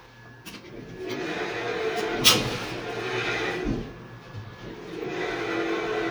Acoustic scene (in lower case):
elevator